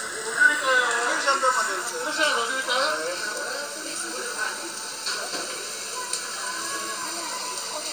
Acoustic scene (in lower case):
restaurant